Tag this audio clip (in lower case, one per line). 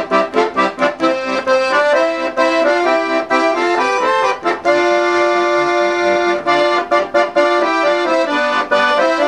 playing accordion